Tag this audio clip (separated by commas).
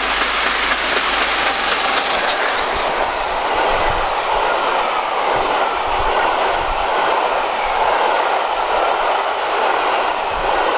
train whistling